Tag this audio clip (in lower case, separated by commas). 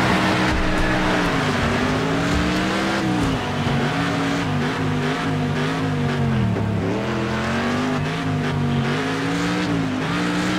car, vehicle, motor vehicle (road)